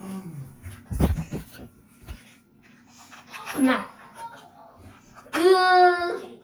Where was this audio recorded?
in a restroom